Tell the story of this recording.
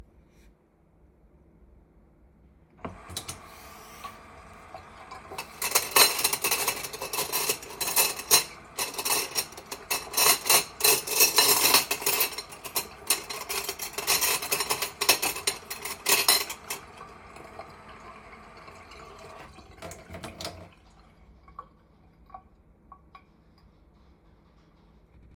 I walked to the sink and turned on the tap. Water started running while I moved several dishes and pieces of cutlery in the sink. The dishes clinked together while the water continued running. After a few seconds I stopped moving the dishes and turned off the water.